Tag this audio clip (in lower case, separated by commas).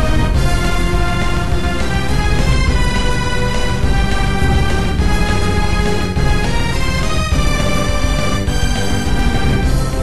theme music, music